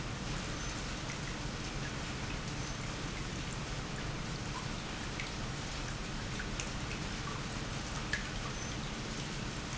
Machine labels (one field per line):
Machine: pump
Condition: normal